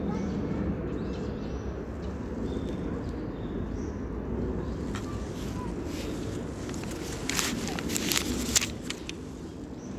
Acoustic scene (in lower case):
park